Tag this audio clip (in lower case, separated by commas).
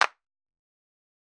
hands, clapping